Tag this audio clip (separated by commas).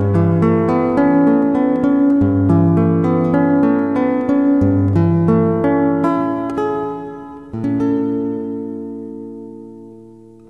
Zither, Music